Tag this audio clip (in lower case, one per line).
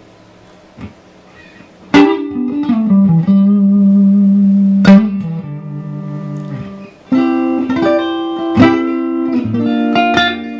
music
musical instrument
plucked string instrument
guitar
electric guitar